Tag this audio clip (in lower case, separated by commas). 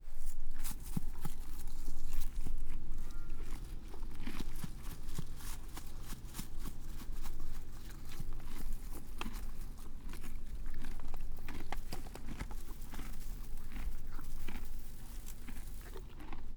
animal, livestock, chewing